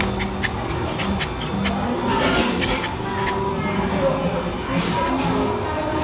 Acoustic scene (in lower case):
restaurant